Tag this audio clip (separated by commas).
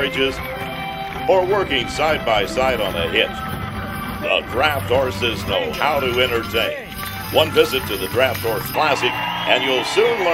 Music, Speech, Clip-clop